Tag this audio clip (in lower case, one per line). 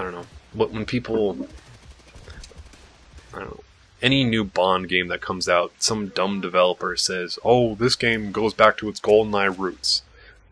speech
monologue